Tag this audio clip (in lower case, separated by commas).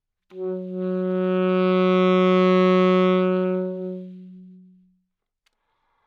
musical instrument, music, wind instrument